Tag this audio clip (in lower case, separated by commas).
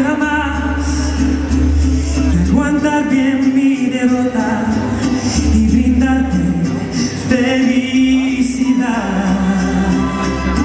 music, male singing